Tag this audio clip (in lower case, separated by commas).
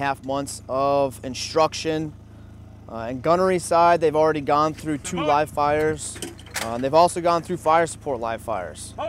outside, urban or man-made, speech